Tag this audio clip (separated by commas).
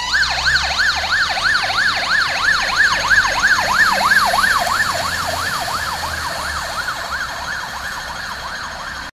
Emergency vehicle, Engine, Vehicle, fire truck (siren)